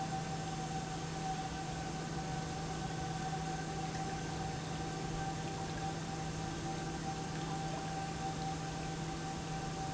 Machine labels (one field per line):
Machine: pump